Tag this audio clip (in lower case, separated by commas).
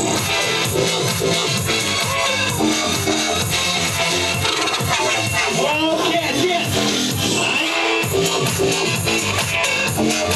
music, speech